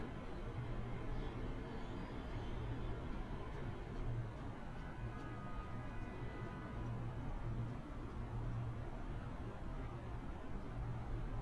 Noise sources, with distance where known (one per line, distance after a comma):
car horn, far